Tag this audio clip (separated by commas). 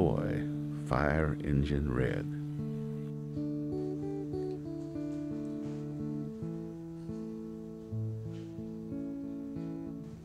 Music, Speech